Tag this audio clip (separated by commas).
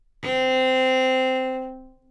Musical instrument, Bowed string instrument, Music